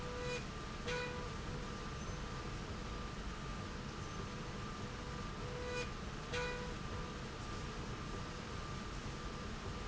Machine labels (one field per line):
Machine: slide rail